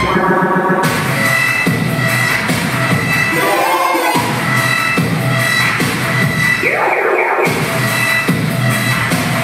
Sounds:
dubstep, music

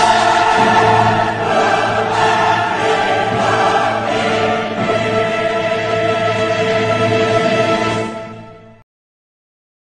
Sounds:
music

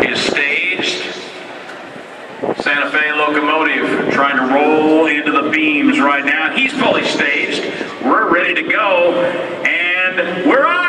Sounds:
speech

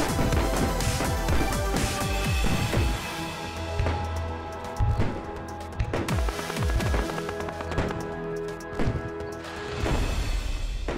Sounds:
lighting firecrackers

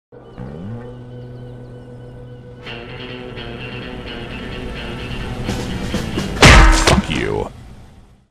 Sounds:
music, speech

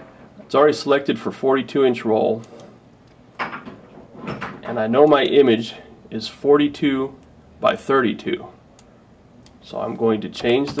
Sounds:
speech

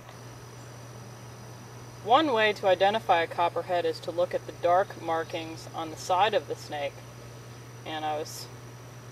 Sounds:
speech

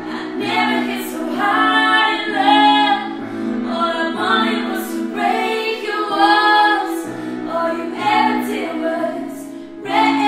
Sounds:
keyboard (musical), music, inside a small room

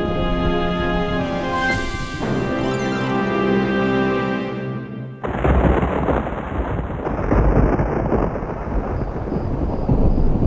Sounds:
music

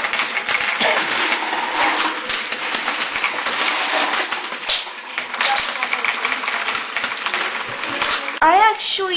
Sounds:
speech

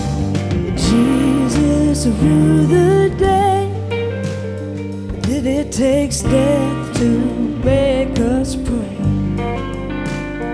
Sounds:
singing, guitar, music

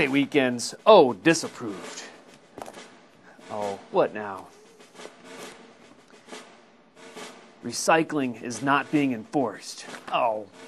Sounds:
speech, inside a small room, music

